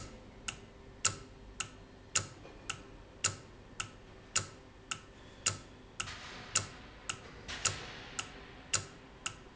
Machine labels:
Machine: valve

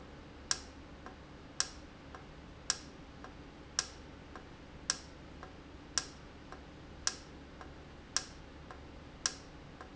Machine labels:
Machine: valve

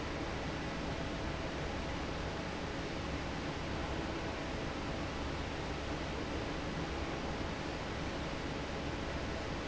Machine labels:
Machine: fan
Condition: normal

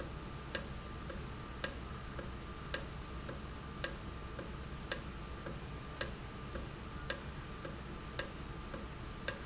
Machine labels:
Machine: valve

